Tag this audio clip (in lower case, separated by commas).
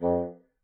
wind instrument, music, musical instrument